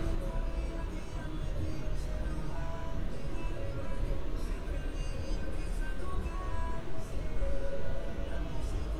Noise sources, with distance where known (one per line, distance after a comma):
music from a moving source